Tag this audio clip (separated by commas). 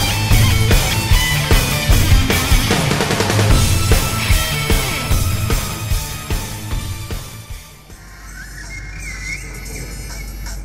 Music